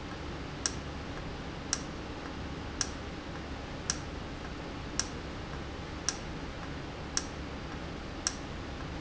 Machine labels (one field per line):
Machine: valve